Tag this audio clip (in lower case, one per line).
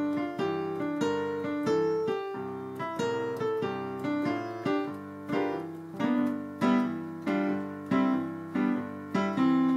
musical instrument
playing piano
electric piano
keyboard (musical)
piano
music